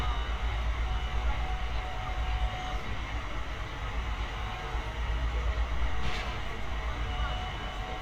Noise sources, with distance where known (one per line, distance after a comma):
person or small group talking, far